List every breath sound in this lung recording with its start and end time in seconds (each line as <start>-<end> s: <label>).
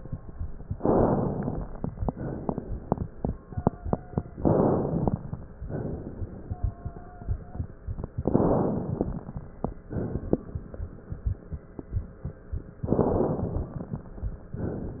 0.74-1.90 s: inhalation
1.99-4.37 s: exhalation
3.46-4.37 s: wheeze
4.42-5.33 s: inhalation
5.46-7.69 s: exhalation
6.43-7.69 s: wheeze
8.18-9.44 s: inhalation
9.86-10.85 s: exhalation
12.85-14.01 s: inhalation